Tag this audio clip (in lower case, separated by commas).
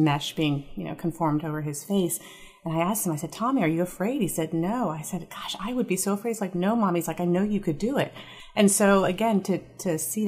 speech